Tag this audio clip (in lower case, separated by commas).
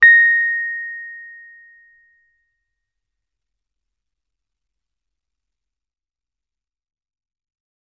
music, piano, keyboard (musical), musical instrument